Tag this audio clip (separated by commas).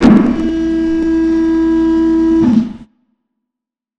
Mechanisms